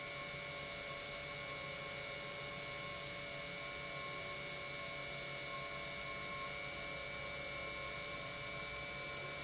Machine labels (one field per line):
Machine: pump